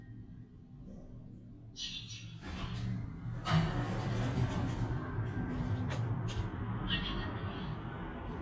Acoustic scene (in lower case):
elevator